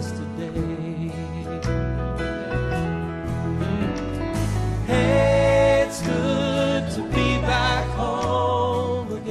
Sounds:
music, christmas music

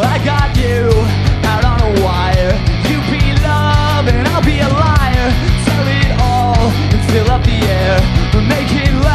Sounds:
music

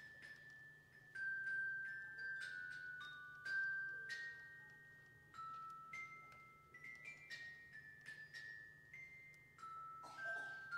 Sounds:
musical instrument, music

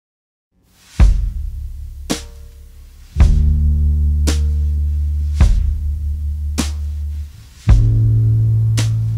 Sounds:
music

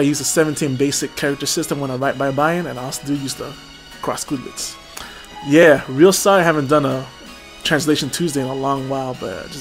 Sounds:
music, speech

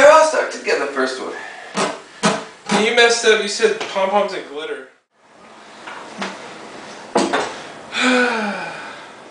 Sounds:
speech

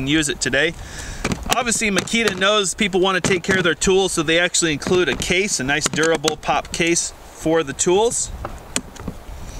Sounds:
speech

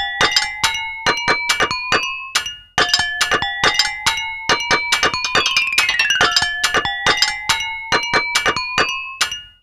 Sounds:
music, chink

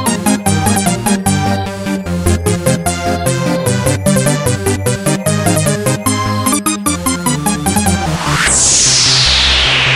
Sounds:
music, electronic music

